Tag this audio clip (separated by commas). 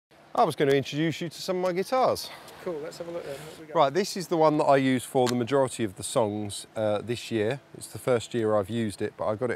Speech